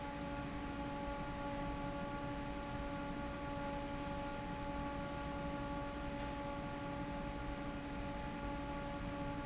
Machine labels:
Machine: fan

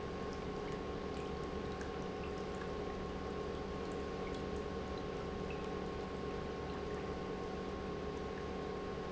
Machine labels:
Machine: pump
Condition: normal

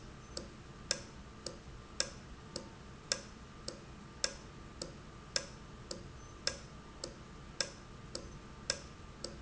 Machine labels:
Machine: valve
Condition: normal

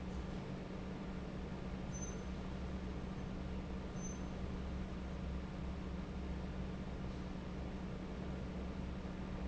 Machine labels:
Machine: fan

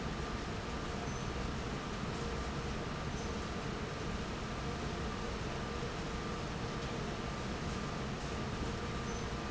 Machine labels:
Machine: fan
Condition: normal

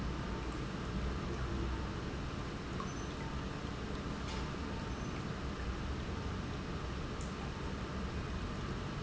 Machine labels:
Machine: pump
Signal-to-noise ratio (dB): -6 dB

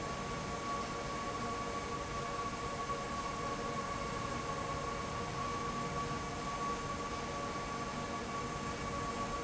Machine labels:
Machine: fan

